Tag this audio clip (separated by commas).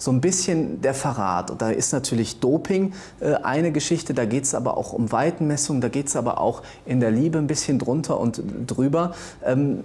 Speech, inside a small room